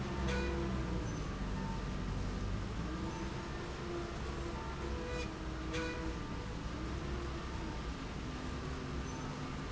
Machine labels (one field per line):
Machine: slide rail